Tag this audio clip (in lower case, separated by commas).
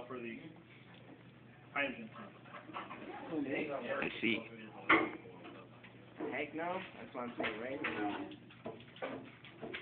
speech